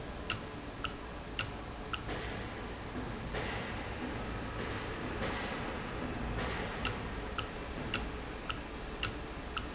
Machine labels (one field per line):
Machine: valve